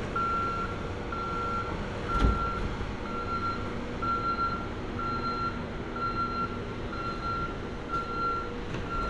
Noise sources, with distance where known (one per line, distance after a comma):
medium-sounding engine, near
reverse beeper, near